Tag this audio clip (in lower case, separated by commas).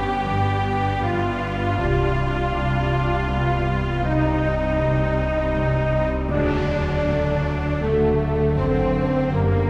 music